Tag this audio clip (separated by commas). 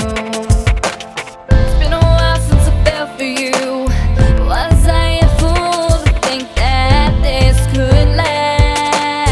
Music